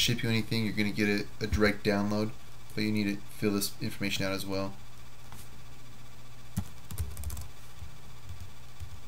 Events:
0.0s-0.4s: male speech
0.0s-9.0s: mechanisms
0.5s-1.2s: male speech
1.4s-1.7s: male speech
1.5s-1.6s: tap
1.8s-2.3s: male speech
2.7s-3.1s: male speech
3.4s-3.7s: male speech
3.8s-4.7s: male speech
4.1s-4.3s: tap
5.2s-5.4s: generic impact sounds
6.5s-6.7s: computer keyboard
6.9s-7.4s: computer keyboard
8.2s-8.5s: clicking
8.7s-8.8s: clicking

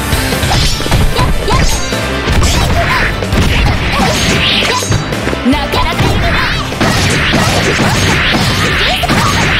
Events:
0.0s-0.9s: sound effect
0.0s-9.5s: music
0.0s-9.5s: video game sound
1.0s-1.1s: speech synthesizer
1.4s-3.1s: sound effect
1.4s-1.5s: speech synthesizer
2.5s-3.1s: speech synthesizer
3.6s-4.1s: speech synthesizer
3.9s-5.1s: sound effect
4.5s-4.8s: speech synthesizer
5.4s-6.7s: speech synthesizer
6.7s-9.5s: sound effect
7.6s-7.9s: speech synthesizer
8.7s-9.2s: speech synthesizer

